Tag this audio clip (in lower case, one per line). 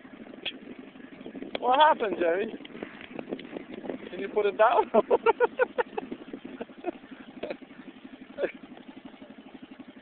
speech